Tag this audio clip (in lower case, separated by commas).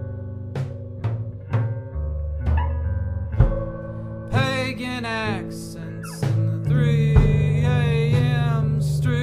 music